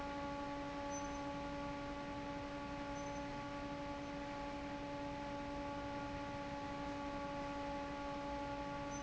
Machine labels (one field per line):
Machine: fan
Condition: normal